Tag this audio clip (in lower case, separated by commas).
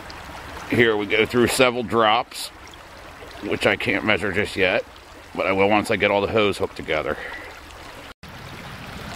speech, gurgling, stream